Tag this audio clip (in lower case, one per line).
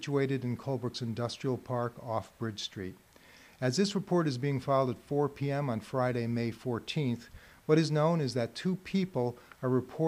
speech